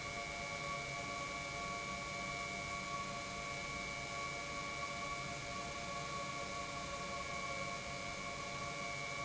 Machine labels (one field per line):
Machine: pump